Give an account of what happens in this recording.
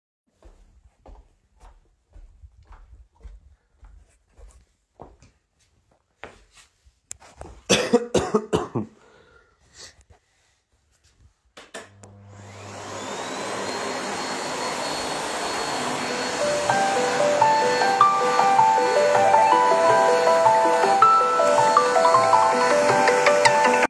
I walked to the vacuum cleaner, coughed and turend it on. While I was vauming I received a call